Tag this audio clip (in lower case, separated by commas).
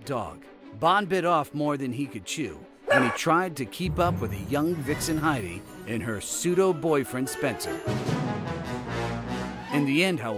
pets, bow-wow, speech, animal, dog, music